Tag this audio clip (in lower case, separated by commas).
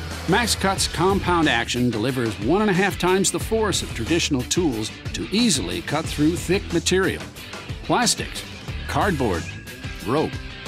speech, music